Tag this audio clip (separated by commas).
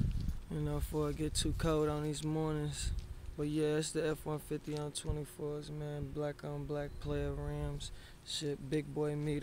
Speech